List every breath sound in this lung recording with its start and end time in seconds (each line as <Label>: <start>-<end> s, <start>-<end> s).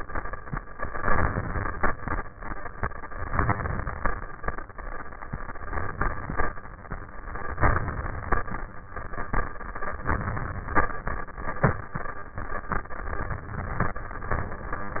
Inhalation: 0.76-1.89 s, 3.30-4.13 s, 5.68-6.51 s, 7.60-8.43 s, 10.08-10.91 s